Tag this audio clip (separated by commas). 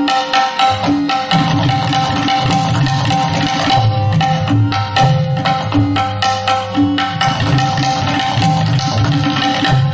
Percussion, Tabla